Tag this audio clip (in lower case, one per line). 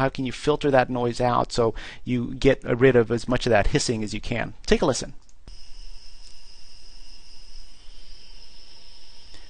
speech